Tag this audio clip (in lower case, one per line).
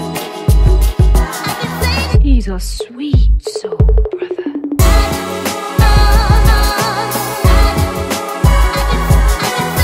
electronic music
funk
music